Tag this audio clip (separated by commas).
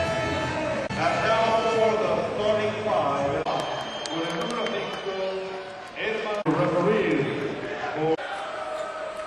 Speech